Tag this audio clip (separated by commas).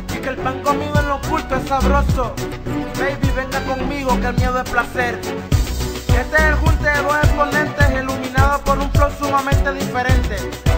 Music of Africa, Music